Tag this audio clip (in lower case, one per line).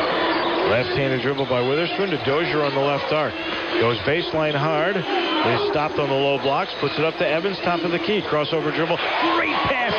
speech